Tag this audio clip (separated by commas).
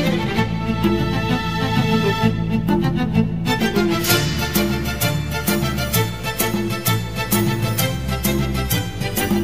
Music